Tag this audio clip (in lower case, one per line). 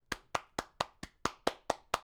hands
clapping